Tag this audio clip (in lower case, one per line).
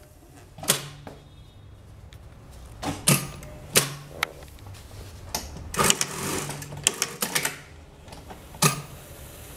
using sewing machines